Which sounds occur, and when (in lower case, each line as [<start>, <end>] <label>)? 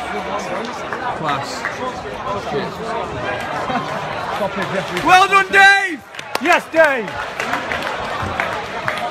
[0.00, 1.57] man speaking
[0.00, 9.10] crowd
[0.38, 1.20] applause
[1.78, 3.73] man speaking
[4.14, 5.15] applause
[4.32, 6.02] man speaking
[6.14, 9.10] applause
[6.37, 7.12] man speaking
[8.18, 9.10] man speaking